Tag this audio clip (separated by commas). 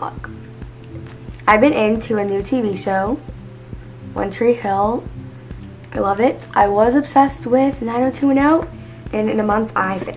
Speech, inside a small room, Music